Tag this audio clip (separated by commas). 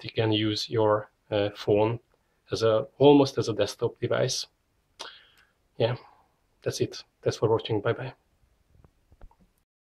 Speech